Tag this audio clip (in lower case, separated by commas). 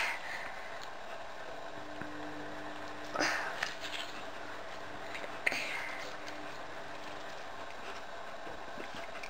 people eating apple